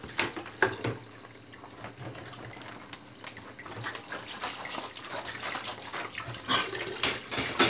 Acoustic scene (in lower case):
kitchen